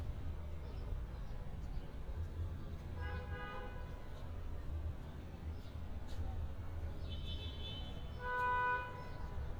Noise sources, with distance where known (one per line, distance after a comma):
car horn